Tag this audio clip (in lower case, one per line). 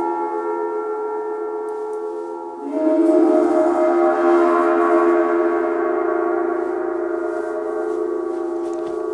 playing gong